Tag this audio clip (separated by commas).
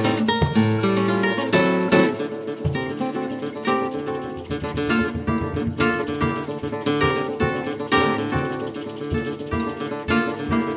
Musical instrument, Guitar, Plucked string instrument, Music